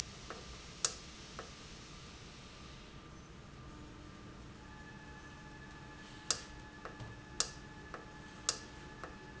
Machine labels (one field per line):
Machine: valve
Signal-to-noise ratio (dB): 6 dB